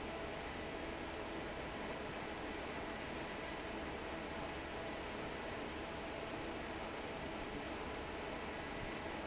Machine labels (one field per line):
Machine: fan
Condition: normal